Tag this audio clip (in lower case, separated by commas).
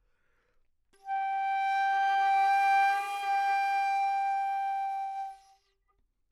music, musical instrument, woodwind instrument